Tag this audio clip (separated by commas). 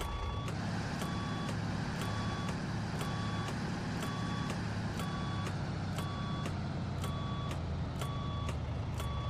Truck